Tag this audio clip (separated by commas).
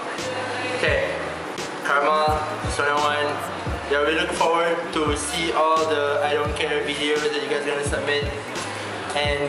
Speech, Music